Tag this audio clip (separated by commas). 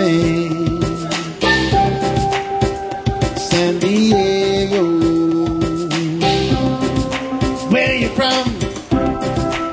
Music, Steelpan, Drum